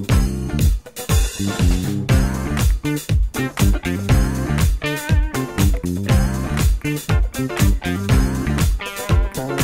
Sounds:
music

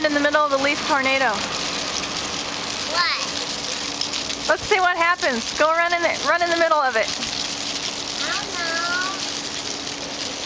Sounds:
child speech
rustling leaves
speech

